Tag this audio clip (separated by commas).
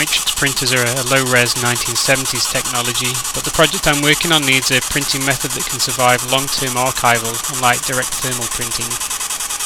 Printer, Speech